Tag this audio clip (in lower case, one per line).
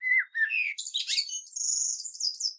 animal
wild animals
bird